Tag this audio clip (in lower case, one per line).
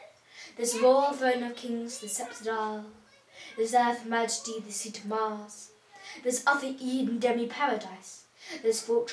narration
speech